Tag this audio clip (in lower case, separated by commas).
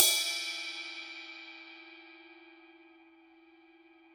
musical instrument, cymbal, crash cymbal, music, percussion